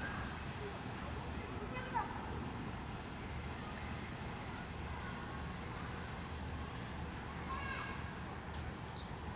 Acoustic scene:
residential area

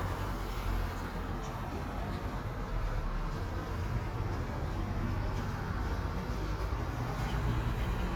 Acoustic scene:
residential area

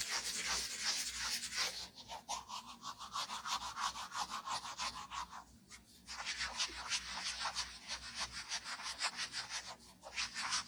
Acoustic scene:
restroom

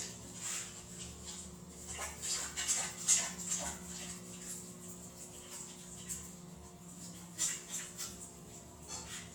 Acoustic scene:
restroom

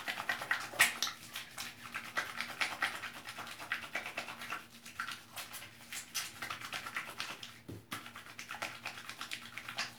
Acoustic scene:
restroom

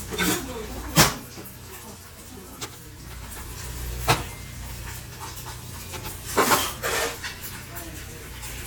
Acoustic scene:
restaurant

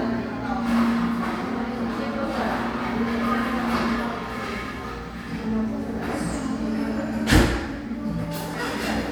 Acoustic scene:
cafe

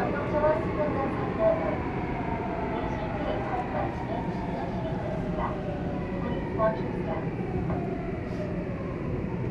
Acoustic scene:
subway train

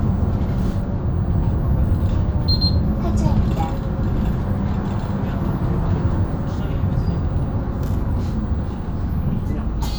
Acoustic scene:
bus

